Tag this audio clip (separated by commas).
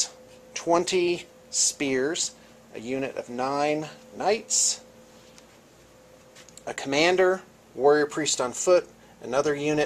Speech